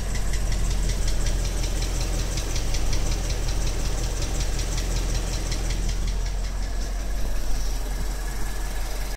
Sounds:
engine knocking
car engine knocking

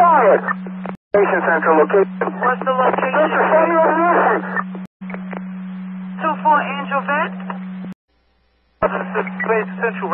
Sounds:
police radio chatter

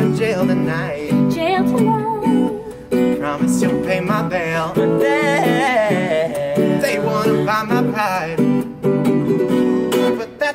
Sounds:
mandolin

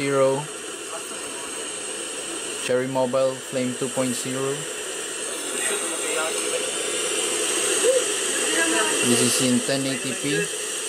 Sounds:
television
speech
inside a small room

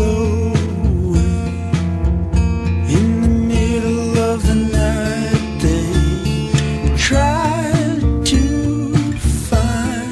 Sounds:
music

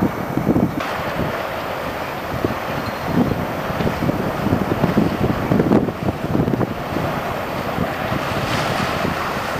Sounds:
vehicle
sailboat
ship
water vehicle

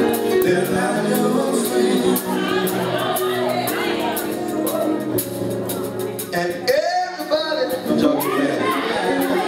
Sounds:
speech
music
male singing

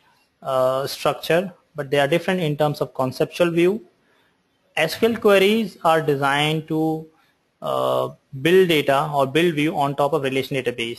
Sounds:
speech

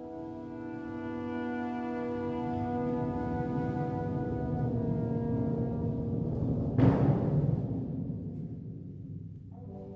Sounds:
music
clarinet
musical instrument

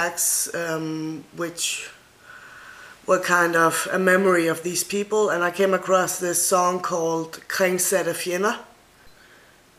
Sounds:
speech

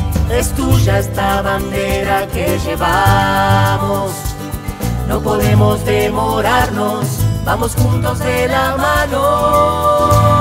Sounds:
music

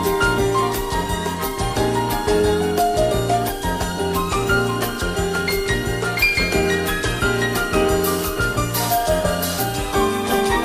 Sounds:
music

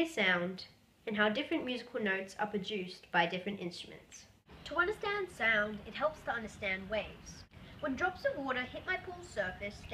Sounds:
speech

